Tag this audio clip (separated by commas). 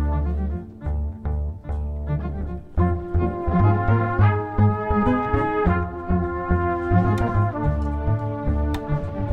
Musical instrument, Music, inside a large room or hall